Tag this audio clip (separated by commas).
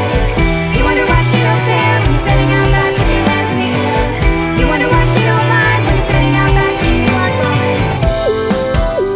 Music